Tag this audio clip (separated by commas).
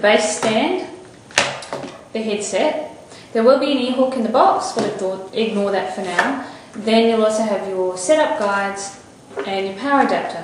Speech